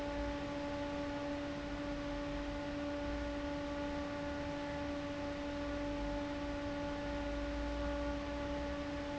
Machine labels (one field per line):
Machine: fan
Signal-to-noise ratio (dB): 0 dB